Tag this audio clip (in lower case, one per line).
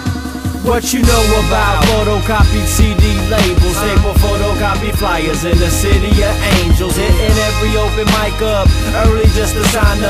music